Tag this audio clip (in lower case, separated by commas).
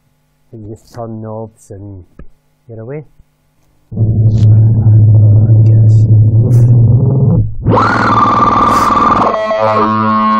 synthesizer, musical instrument, speech, music